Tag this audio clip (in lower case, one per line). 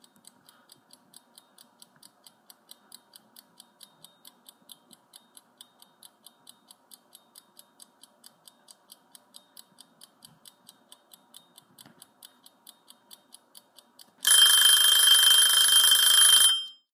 mechanisms
alarm
clock
tick-tock